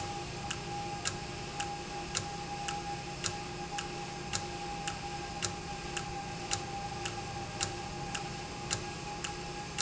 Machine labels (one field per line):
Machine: valve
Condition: normal